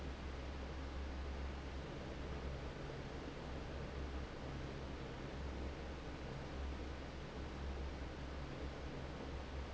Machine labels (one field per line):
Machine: fan